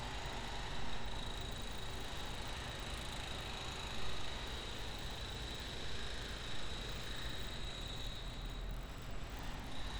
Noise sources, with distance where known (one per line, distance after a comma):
jackhammer, far